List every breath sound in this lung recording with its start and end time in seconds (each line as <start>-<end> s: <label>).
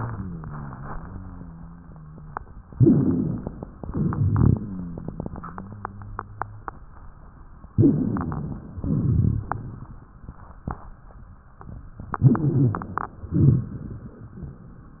0.00-2.47 s: rhonchi
2.71-3.66 s: inhalation
2.71-3.66 s: wheeze
3.81-4.76 s: exhalation
3.81-4.90 s: rhonchi
5.46-6.68 s: rhonchi
7.70-8.69 s: inhalation
7.70-8.69 s: wheeze
8.78-10.15 s: exhalation
8.78-10.15 s: crackles
12.16-13.21 s: inhalation
12.16-13.21 s: wheeze
13.21-14.27 s: exhalation
13.21-14.27 s: crackles